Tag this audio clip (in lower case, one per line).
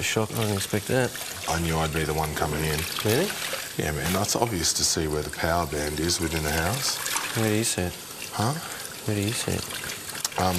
speech
inside a large room or hall